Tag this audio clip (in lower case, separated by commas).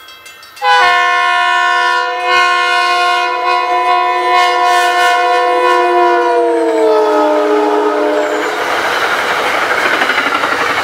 rail transport, train, vehicle